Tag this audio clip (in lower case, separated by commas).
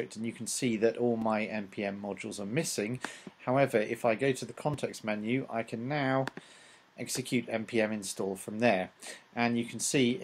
speech